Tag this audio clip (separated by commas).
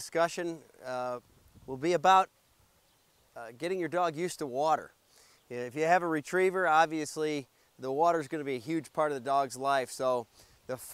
Speech